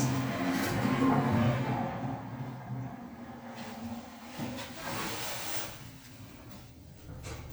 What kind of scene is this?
elevator